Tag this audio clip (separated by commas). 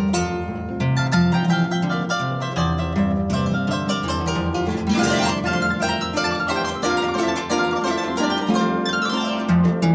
playing harp